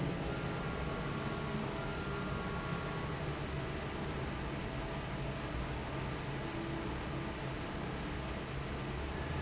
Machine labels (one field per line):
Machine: fan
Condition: normal